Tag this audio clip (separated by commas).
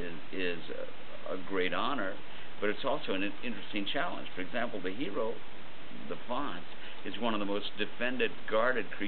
Speech